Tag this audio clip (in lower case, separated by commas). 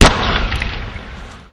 explosion